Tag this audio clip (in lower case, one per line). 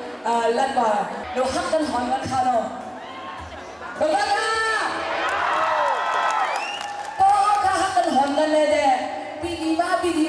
speech